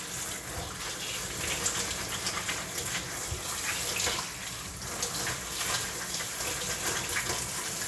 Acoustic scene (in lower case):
kitchen